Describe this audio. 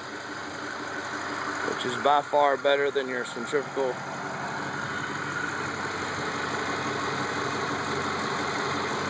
A man is speaking over an idling engine outside